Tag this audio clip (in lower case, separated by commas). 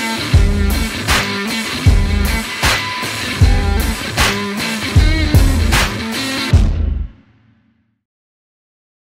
music